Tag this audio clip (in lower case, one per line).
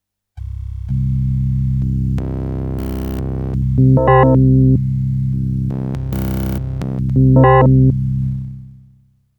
keyboard (musical)
musical instrument
music